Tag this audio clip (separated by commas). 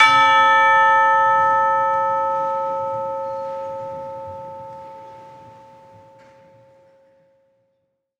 Bell, Church bell, Musical instrument, Music, Percussion